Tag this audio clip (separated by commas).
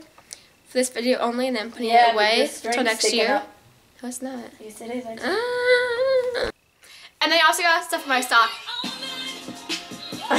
Music, inside a small room, Speech